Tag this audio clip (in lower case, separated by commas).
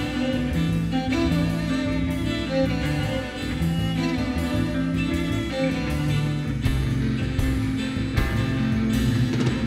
music